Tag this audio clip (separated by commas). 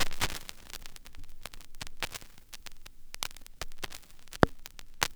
Crackle